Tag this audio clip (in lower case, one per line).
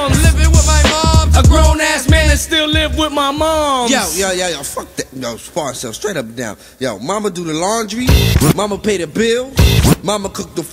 music